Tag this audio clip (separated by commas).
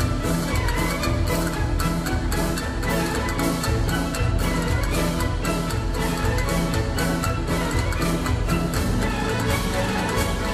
playing castanets